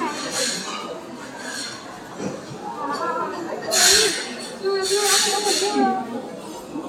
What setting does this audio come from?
restaurant